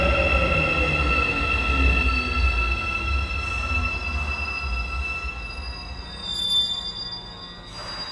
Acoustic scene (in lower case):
subway station